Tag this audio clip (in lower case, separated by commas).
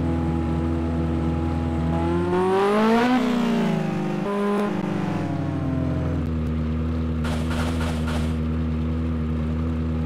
vehicle, heavy engine (low frequency), revving